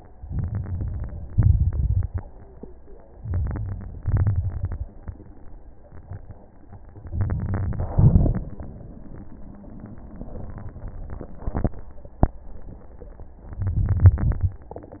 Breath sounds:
Inhalation: 0.21-1.32 s, 3.18-4.02 s, 7.12-7.93 s, 13.60-14.17 s
Exhalation: 1.31-2.12 s, 4.04-4.85 s, 7.97-8.54 s, 14.19-14.76 s
Crackles: 0.25-1.27 s, 1.31-2.12 s, 3.18-4.02 s, 4.04-4.85 s, 7.12-7.93 s, 7.97-8.54 s, 13.60-14.17 s, 14.19-14.76 s

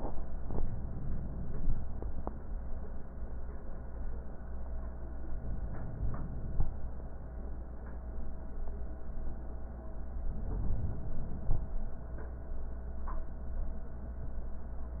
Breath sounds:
Inhalation: 5.33-6.79 s, 10.28-11.75 s

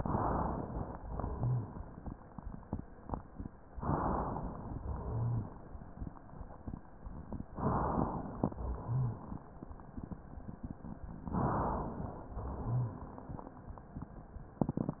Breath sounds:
Inhalation: 0.00-0.95 s, 3.83-4.78 s, 7.57-8.51 s, 11.28-12.23 s
Exhalation: 1.00-3.67 s, 4.80-7.46 s, 8.57-11.23 s, 12.27-14.57 s
Rhonchi: 1.26-1.78 s, 4.96-5.47 s, 8.61-9.13 s, 12.33-12.84 s

